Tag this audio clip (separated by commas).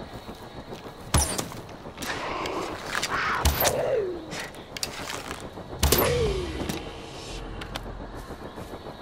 Arrow